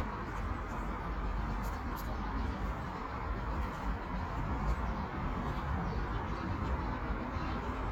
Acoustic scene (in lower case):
residential area